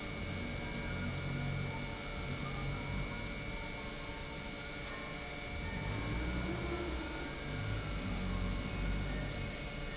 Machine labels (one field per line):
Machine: pump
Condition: normal